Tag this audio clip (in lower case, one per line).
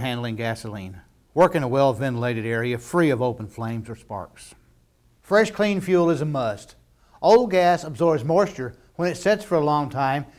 speech